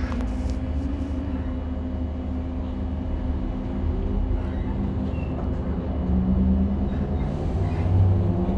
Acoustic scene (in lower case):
bus